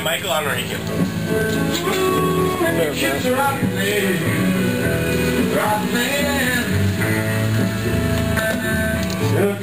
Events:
[0.00, 0.73] man speaking
[0.00, 9.62] music
[0.83, 0.88] tick
[1.48, 4.46] male singing
[2.52, 3.17] man speaking
[5.54, 6.94] male singing
[7.56, 7.61] tick
[8.13, 8.55] generic impact sounds
[8.14, 8.21] tick
[9.04, 9.44] generic impact sounds
[9.17, 9.62] male singing

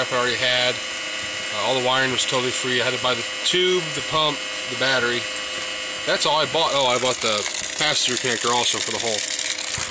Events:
[0.00, 0.78] man speaking
[0.00, 9.90] pump (liquid)
[1.25, 1.32] generic impact sounds
[1.56, 3.28] man speaking
[3.49, 4.41] man speaking
[4.72, 5.29] man speaking
[5.60, 5.68] generic impact sounds
[6.12, 7.49] man speaking
[6.66, 9.90] gush
[7.84, 9.26] man speaking
[9.79, 9.90] generic impact sounds

